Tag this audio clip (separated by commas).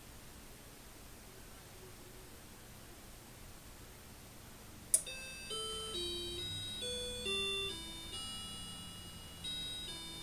Tick-tock